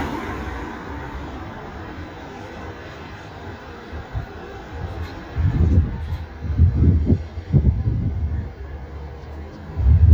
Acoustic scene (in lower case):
street